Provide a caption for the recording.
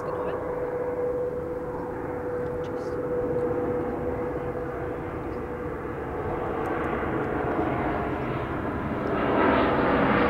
A deep rumbling and a plane flies overhead